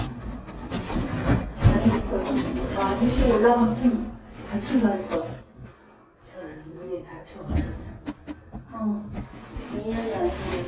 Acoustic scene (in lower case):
elevator